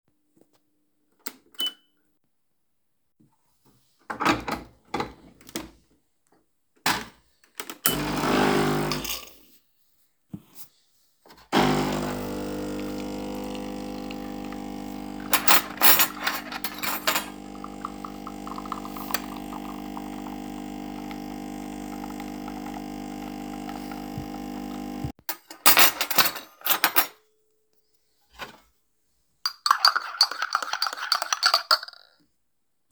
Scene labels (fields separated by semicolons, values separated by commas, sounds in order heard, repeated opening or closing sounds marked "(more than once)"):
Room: kitchen; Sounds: coffee machine, cutlery and dishes